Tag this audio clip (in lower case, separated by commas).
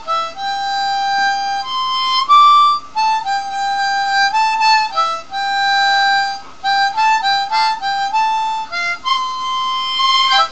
playing harmonica